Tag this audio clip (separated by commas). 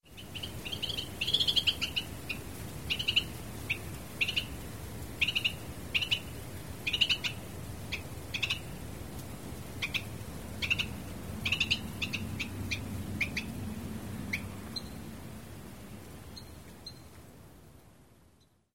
Wild animals, Animal, Bird